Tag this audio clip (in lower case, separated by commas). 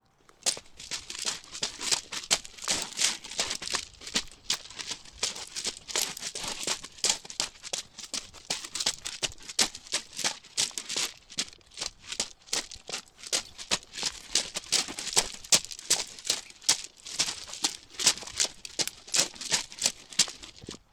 run